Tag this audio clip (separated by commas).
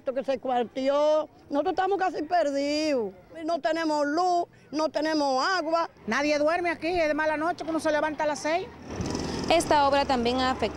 Vehicle, Speech